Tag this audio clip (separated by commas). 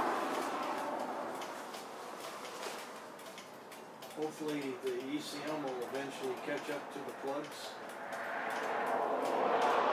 Vehicle, Speech